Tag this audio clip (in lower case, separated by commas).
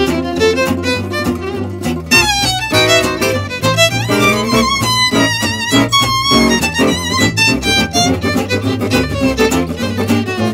musical instrument, plucked string instrument, acoustic guitar, flamenco, guitar